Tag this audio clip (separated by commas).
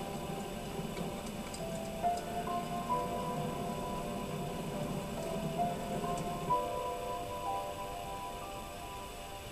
Music